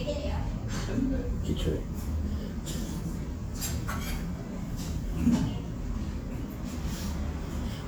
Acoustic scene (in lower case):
crowded indoor space